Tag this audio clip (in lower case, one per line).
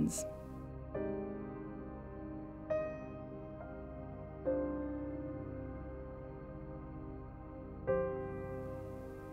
speech
music